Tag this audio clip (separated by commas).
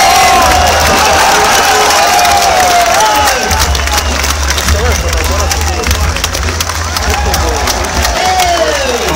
Speech